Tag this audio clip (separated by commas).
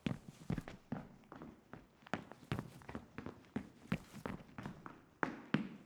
Run